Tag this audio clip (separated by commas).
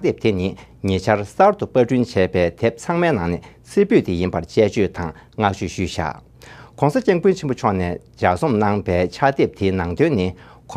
Speech